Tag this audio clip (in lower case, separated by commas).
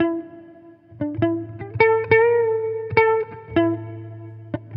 plucked string instrument, guitar, electric guitar, musical instrument, music